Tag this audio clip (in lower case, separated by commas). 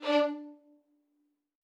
bowed string instrument, musical instrument, music